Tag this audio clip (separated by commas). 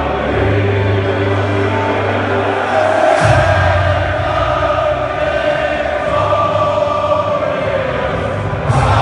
Music, Choir